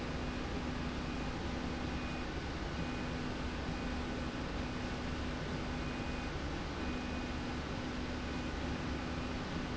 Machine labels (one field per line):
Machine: slide rail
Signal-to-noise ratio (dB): -6 dB